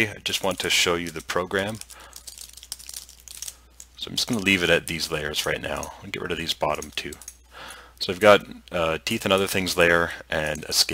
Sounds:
Speech

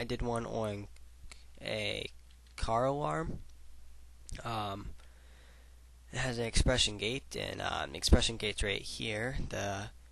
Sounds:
Speech

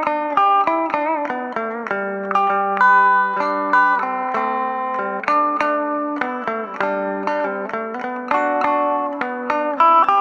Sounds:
Strum, Musical instrument, Electric guitar, Plucked string instrument, Guitar, Music

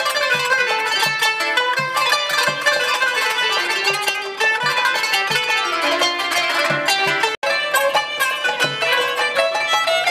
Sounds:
playing zither

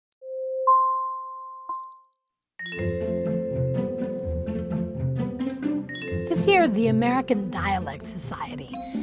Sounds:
Beep

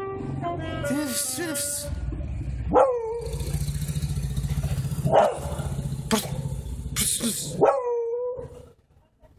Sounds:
Saxophone, Brass instrument

